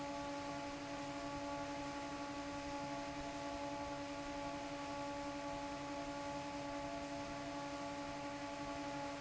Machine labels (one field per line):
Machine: fan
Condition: normal